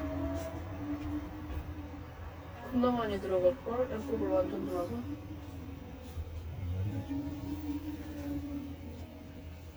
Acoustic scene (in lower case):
car